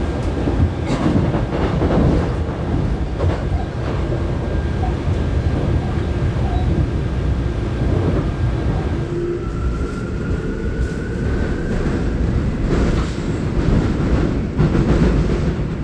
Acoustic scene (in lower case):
subway train